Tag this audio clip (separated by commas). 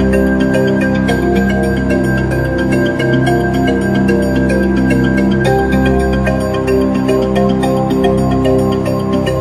Music